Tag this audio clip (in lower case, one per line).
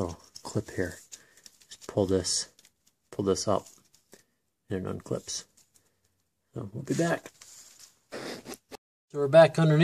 speech